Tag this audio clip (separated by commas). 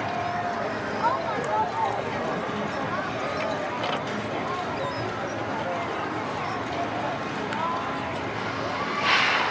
Speech